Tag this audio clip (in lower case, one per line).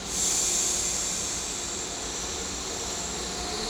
vehicle
train
rail transport